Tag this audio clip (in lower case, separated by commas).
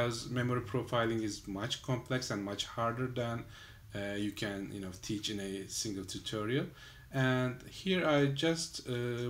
speech